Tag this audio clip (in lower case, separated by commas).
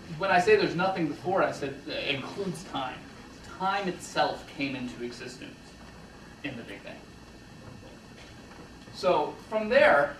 speech